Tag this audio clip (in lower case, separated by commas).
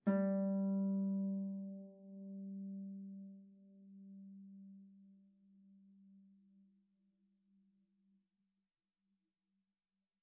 harp, music, musical instrument